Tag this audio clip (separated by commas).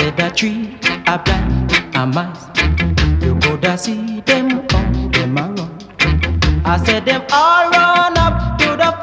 Music